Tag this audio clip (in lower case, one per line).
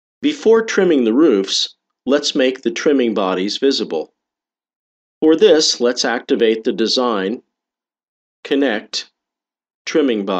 speech